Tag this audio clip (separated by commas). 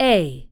Speech, Human voice, woman speaking